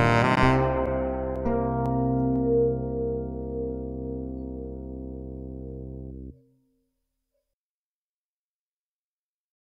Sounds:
synthesizer, music

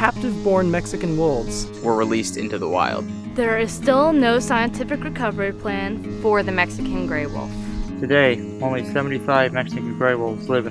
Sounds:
speech, music

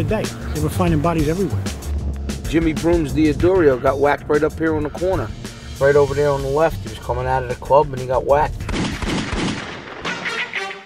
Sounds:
music, gunfire, speech

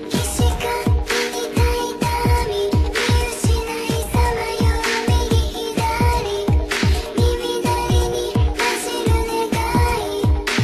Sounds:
music

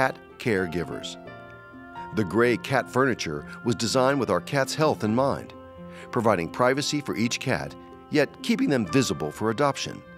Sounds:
speech, music

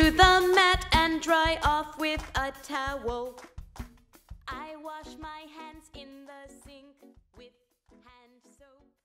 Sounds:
music, female singing

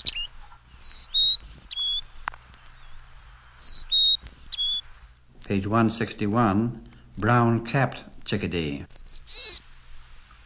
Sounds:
chirp, bird, bird song

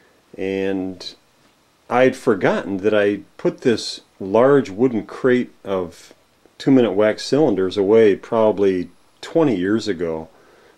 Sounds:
speech

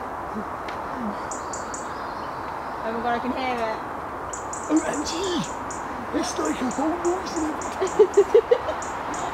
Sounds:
chirp, bird vocalization, speech

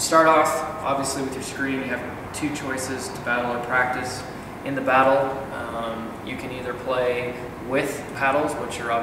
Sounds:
speech

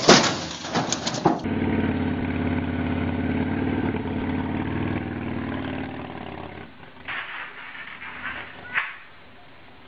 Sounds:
motorcycle, vehicle, motor vehicle (road), driving motorcycle

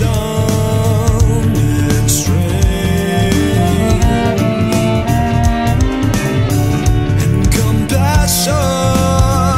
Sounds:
double bass, bowed string instrument, fiddle, cello

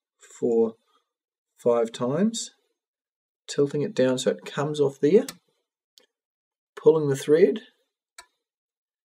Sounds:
speech

